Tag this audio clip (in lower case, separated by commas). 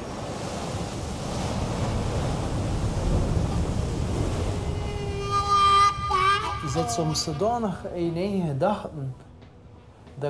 music, speech